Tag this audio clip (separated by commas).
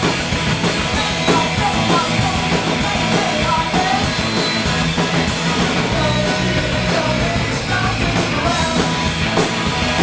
Music, Orchestra